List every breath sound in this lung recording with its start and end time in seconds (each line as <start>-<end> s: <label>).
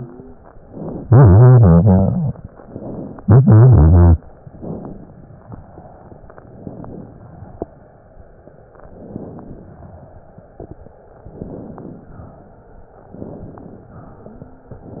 4.50-5.20 s: inhalation
6.64-7.34 s: inhalation
8.92-9.85 s: inhalation
11.21-12.14 s: inhalation
13.09-14.02 s: inhalation